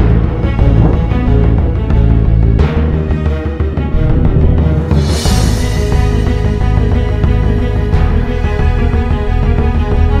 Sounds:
music

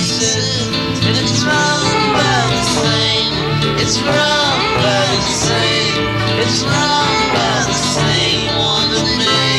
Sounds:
music

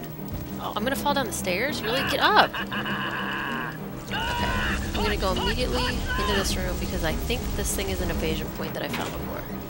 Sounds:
music
speech

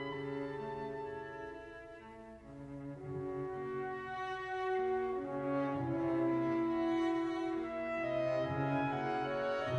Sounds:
music

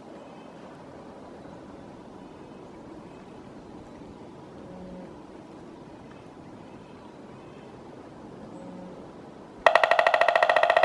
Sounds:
woodpecker pecking tree

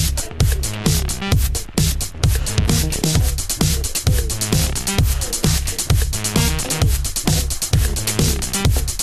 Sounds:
music

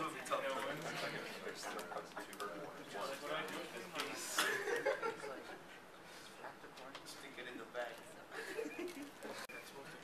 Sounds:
speech

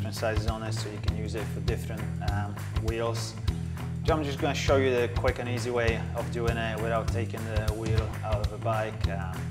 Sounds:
music
speech

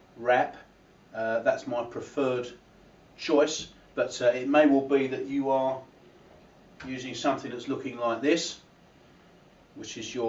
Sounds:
speech

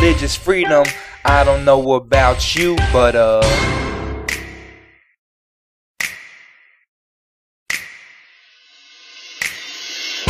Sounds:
music
rapping

